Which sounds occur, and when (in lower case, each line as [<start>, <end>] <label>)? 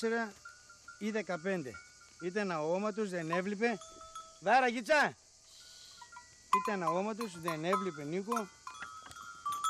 [0.00, 0.32] male speech
[0.43, 4.43] bell
[0.98, 1.69] male speech
[2.20, 3.73] male speech
[4.40, 5.16] male speech
[5.34, 9.65] bell
[6.48, 8.56] male speech